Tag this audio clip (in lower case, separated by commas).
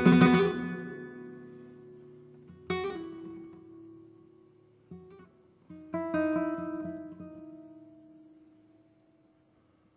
music